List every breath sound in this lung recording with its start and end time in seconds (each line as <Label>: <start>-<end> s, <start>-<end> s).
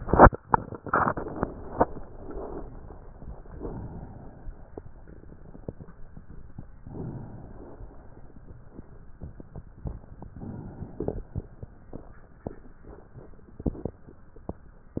Inhalation: 3.49-5.08 s, 6.81-8.40 s, 10.07-11.67 s